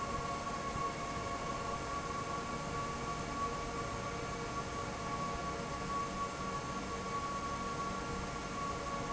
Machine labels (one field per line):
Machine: fan